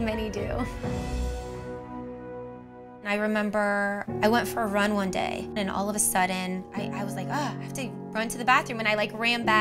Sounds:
music
speech

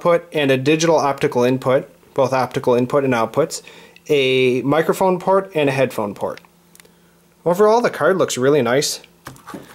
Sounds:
speech

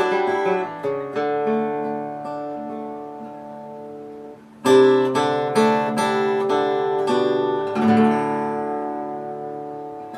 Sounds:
music
musical instrument
guitar
strum

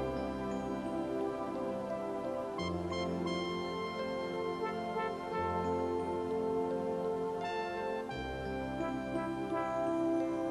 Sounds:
music

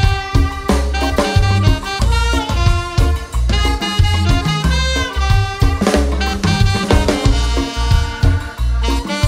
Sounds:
music

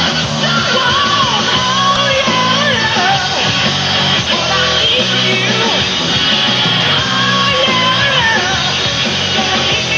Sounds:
singing
music

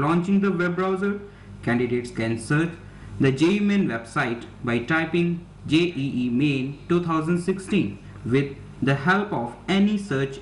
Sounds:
speech

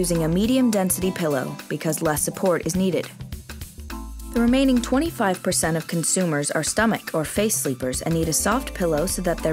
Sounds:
music
speech

